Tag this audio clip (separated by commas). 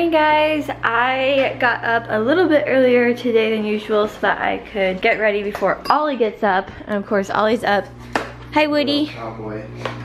Speech